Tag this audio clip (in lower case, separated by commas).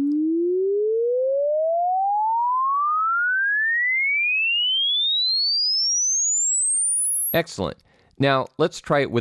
speech, dial tone